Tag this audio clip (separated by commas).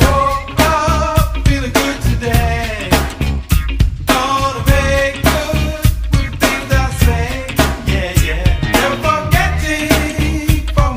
Music